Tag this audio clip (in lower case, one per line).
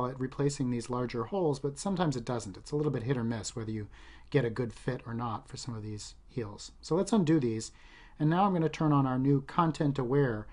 speech